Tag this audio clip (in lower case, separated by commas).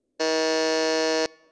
alarm